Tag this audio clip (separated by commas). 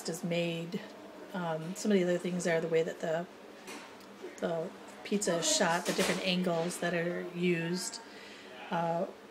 Speech